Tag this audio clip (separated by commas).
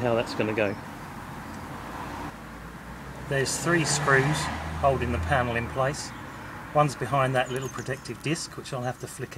Speech, Vehicle